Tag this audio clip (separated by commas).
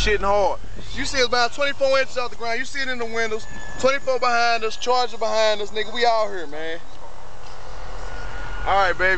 Speech